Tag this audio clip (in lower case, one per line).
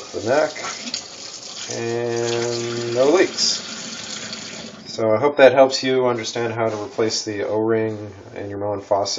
water tap
speech
inside a small room